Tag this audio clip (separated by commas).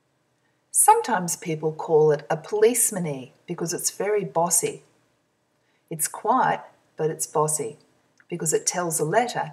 Speech